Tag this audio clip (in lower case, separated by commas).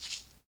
rattle (instrument), musical instrument, percussion, music